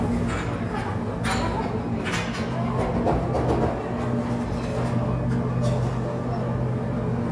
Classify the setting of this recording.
cafe